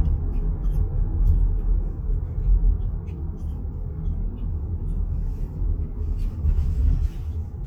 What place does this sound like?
car